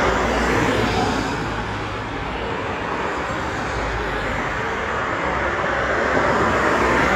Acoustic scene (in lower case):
street